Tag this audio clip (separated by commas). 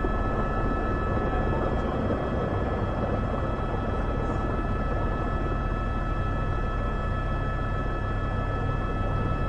Vehicle